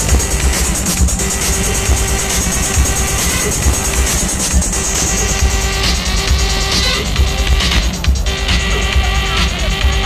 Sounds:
Music, Electronic music, Techno, Speech

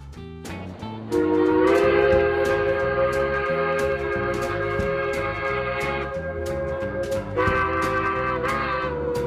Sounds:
Music

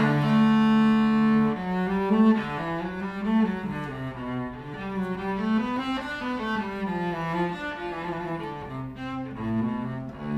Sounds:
playing cello

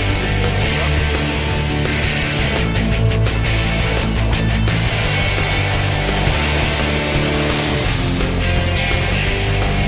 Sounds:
Speech, speedboat, Music, Vehicle

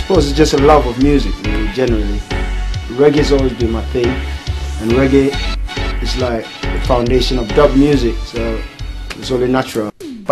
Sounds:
Speech, Music

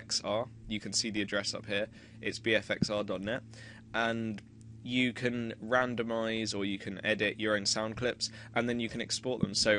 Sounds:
Speech

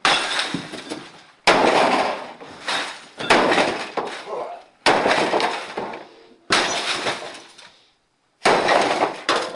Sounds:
crash

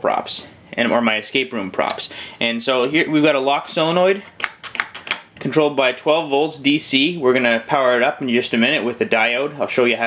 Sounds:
Speech

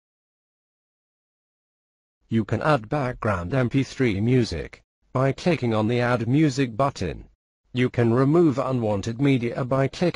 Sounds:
Speech, monologue, man speaking

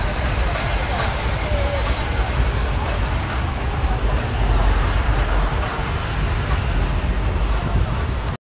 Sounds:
Speech, Car, Music, Motor vehicle (road), Vehicle

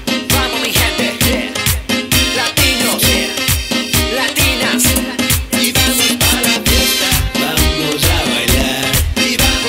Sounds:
Dance music, Music

